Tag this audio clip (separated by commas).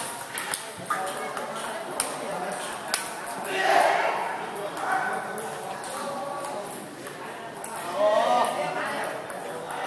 Speech